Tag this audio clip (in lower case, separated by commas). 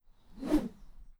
whoosh